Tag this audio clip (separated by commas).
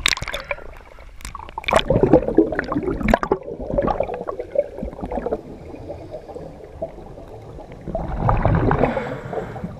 scuba diving